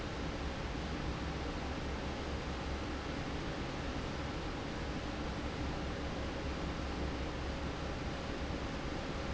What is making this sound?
fan